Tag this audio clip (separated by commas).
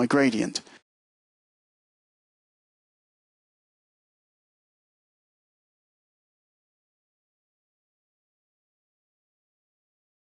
Speech